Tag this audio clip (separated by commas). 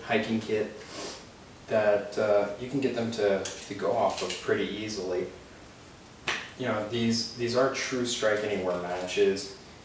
Speech